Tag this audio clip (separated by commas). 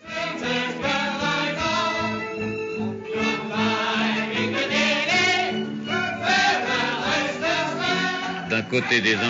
Speech, Music